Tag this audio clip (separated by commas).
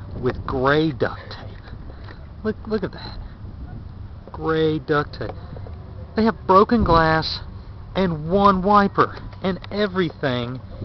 Speech